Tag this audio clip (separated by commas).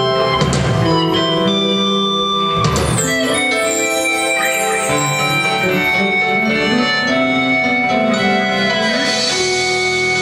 inside a large room or hall, Music